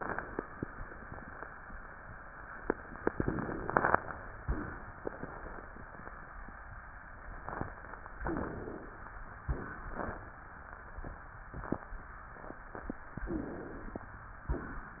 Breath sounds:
Inhalation: 3.11-3.97 s, 8.27-8.99 s, 13.28-14.04 s
Exhalation: 4.44-4.88 s, 9.43-10.19 s, 14.48-15.00 s

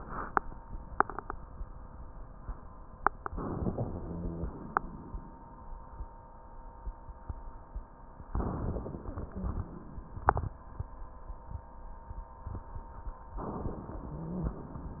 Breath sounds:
Inhalation: 3.28-4.78 s, 8.35-10.21 s, 13.38-15.00 s
Exhalation: 4.78-5.86 s
Rhonchi: 3.81-4.55 s, 14.10-14.83 s

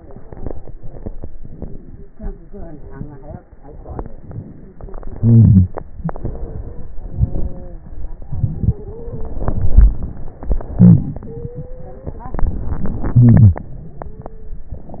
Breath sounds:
Inhalation: 3.57-4.82 s, 5.84-6.91 s, 7.86-8.99 s, 10.38-12.08 s
Exhalation: 4.72-5.81 s, 6.91-7.88 s, 9.03-10.39 s, 12.08-14.68 s
Wheeze: 5.12-5.72 s
Stridor: 6.32-8.16 s, 8.47-9.42 s, 11.29-12.25 s, 13.98-15.00 s
Crackles: 3.57-4.82 s

